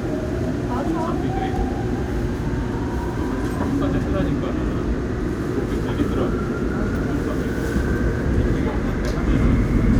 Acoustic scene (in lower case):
subway train